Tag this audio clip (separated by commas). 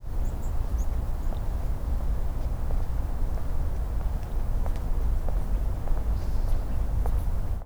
Wild animals, Animal, Bird